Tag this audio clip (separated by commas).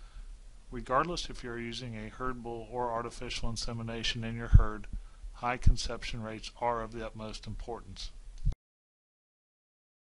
Speech